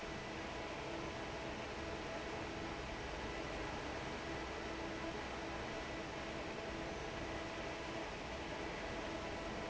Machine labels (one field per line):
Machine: fan